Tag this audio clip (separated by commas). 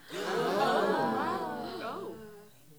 Breathing, Crowd, Human group actions, Gasp, Respiratory sounds